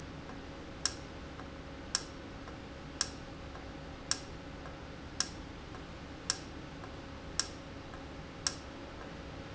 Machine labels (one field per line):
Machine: valve